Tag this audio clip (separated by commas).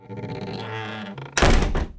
Squeak, Domestic sounds, Slam, Wood, Door